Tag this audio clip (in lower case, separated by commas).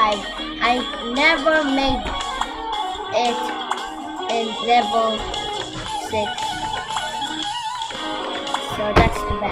speech, music